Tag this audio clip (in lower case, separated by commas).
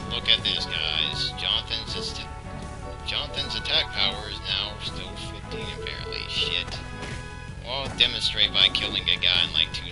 speech, music